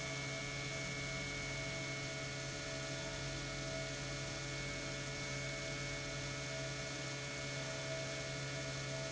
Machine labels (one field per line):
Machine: pump